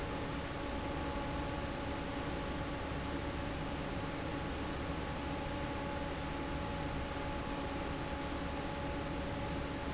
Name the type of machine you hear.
fan